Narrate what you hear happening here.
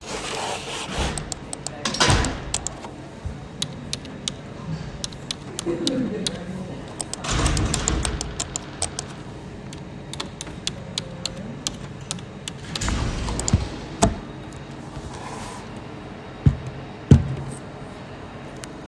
I sat at the desk and typed on the keyboard while a phone notification sound was audible.